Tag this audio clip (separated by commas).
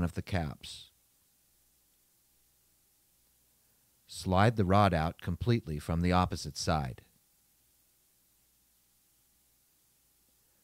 Speech